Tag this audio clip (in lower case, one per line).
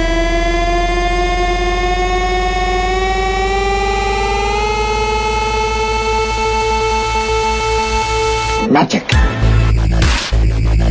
music
speech